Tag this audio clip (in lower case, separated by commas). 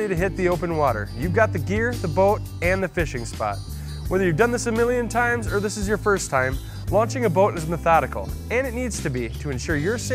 music, speech